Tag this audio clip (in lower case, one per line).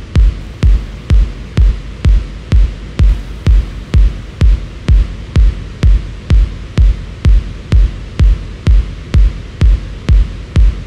techno
electronic music
music